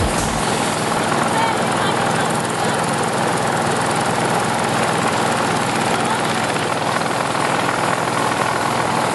Helicopter in flight with faint sound of humans talking below